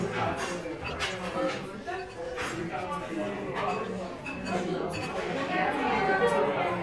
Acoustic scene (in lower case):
crowded indoor space